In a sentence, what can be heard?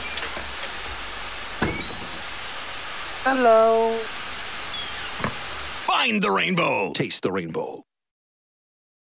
A door opening and two men speaking